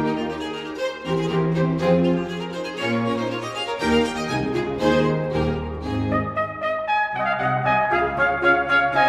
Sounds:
keyboard (musical)
piano

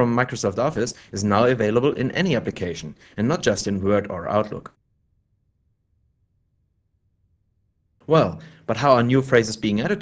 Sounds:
speech

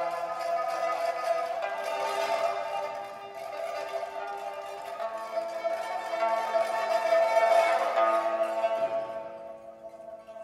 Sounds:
music

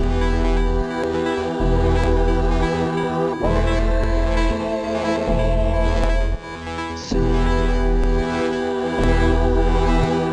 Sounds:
music

